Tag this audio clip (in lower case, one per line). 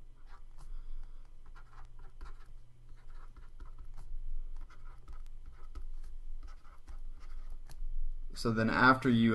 writing